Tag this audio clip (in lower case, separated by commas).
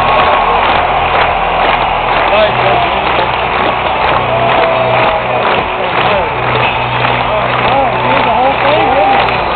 speech